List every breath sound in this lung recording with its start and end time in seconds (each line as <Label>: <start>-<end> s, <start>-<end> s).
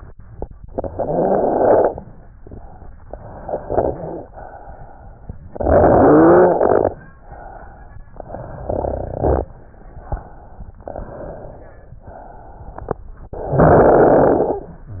Inhalation: 0.55-2.11 s, 2.97-4.29 s, 5.60-7.20 s, 8.09-9.66 s, 10.80-12.01 s, 13.30-14.87 s
Exhalation: 4.28-5.60 s, 7.20-8.06 s, 9.70-10.77 s, 11.99-13.29 s